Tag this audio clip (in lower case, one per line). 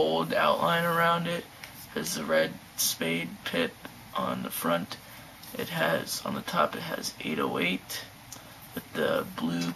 speech